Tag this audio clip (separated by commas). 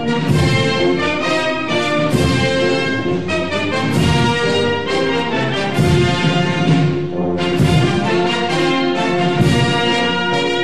Music